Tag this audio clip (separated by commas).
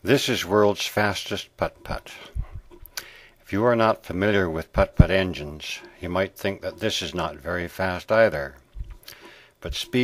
Speech